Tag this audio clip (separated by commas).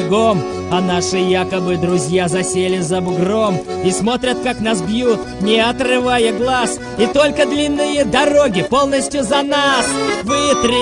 Music